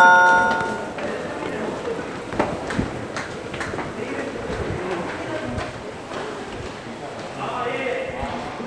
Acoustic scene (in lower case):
subway station